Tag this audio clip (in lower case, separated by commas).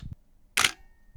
camera, mechanisms